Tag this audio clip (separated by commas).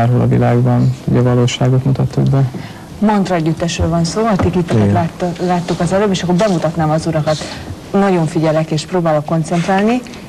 Speech